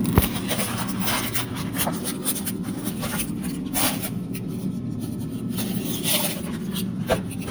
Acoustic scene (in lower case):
kitchen